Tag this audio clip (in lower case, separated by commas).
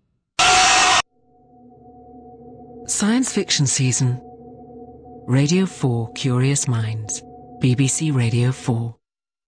music, speech